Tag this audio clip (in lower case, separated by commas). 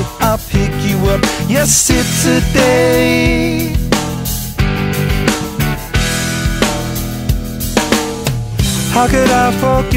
music